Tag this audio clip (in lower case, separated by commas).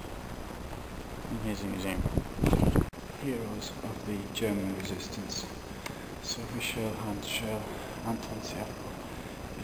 speech, inside a large room or hall